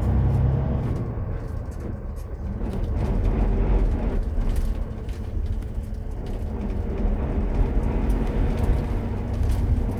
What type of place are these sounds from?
bus